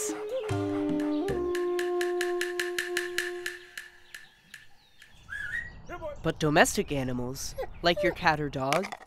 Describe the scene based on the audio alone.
Music and woman speaking, owl hooting in background and tapping